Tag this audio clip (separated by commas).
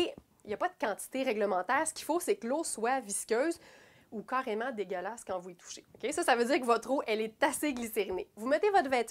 Speech